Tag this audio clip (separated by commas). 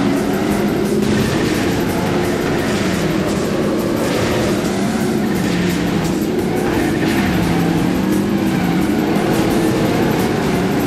Music, Car, Vehicle